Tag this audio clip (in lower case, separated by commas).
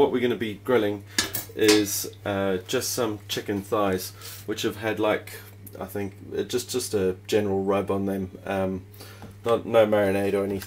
speech